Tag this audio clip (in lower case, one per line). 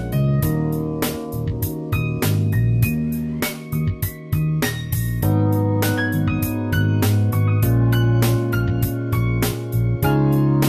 music